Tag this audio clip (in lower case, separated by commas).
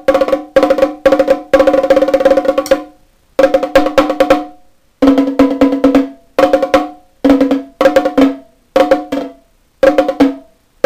music